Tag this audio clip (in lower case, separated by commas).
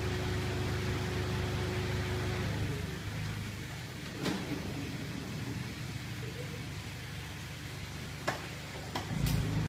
sliding door